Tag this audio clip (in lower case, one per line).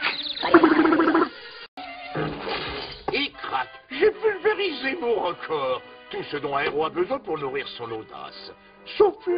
speech
music